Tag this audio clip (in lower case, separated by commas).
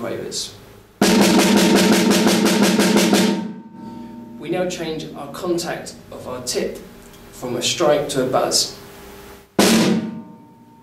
speech, musical instrument, drum kit, percussion, drum roll, drum, snare drum